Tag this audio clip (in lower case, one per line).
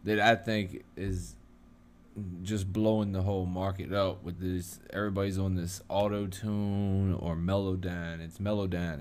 speech